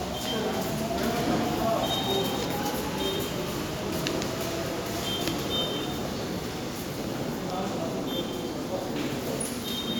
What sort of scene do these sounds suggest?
subway station